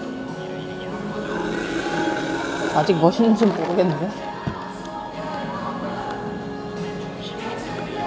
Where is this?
in a cafe